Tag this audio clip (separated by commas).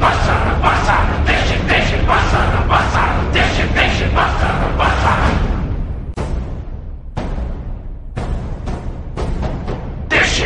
Music